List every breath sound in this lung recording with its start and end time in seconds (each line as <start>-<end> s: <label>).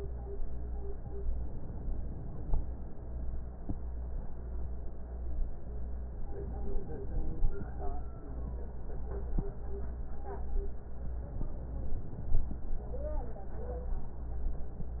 1.40-2.68 s: inhalation
6.38-7.67 s: inhalation
11.32-12.60 s: inhalation